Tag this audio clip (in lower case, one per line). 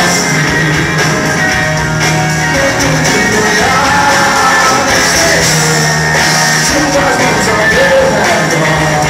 rock music
music